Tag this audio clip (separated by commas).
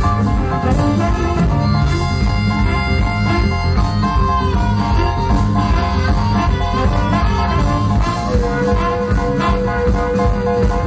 Blues, Music